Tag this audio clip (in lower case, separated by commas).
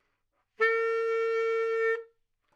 woodwind instrument, music, musical instrument